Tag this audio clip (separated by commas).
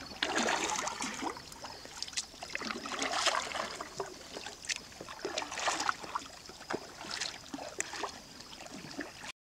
kayak, rowboat